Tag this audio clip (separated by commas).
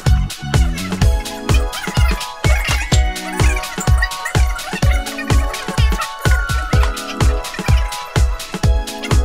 Music